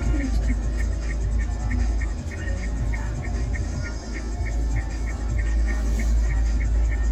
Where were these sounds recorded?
in a car